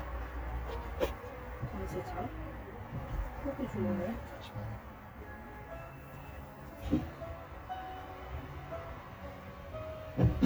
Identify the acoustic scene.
car